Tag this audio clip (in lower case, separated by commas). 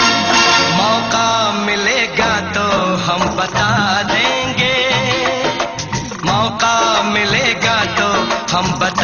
music